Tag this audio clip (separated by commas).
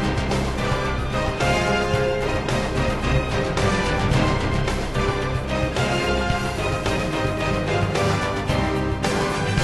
Music